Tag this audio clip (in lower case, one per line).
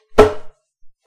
tap